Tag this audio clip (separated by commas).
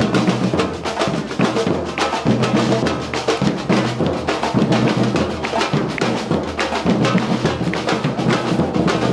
Music